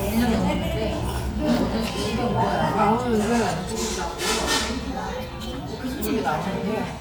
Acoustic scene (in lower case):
restaurant